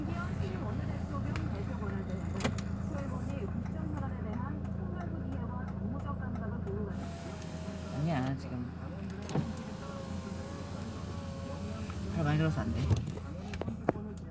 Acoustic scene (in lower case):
car